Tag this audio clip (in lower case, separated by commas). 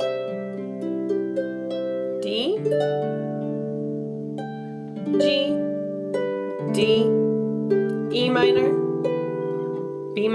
playing harp